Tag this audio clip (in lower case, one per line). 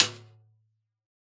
music
percussion
musical instrument
drum
snare drum